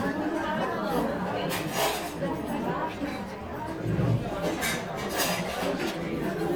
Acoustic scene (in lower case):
crowded indoor space